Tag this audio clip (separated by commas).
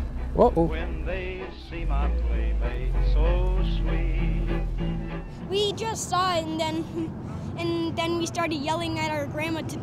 Speech, Vehicle, Music